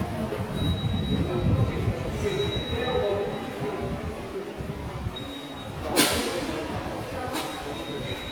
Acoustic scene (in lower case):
subway station